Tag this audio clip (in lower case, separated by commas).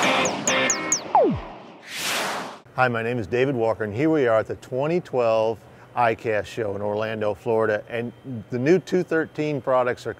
speech, music